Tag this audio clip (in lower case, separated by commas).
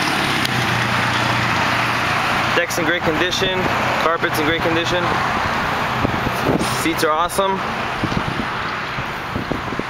speech, vehicle